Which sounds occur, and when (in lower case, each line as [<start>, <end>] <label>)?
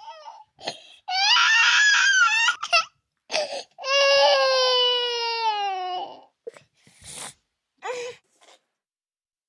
[3.30, 3.78] breathing
[3.81, 6.34] infant cry
[7.79, 8.25] human voice
[8.27, 8.70] sniff